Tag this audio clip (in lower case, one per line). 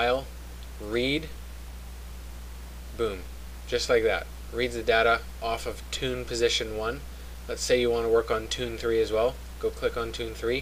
speech